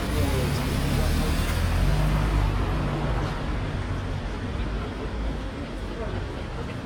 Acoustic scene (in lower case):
street